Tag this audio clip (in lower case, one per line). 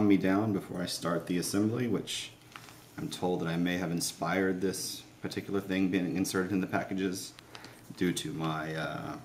speech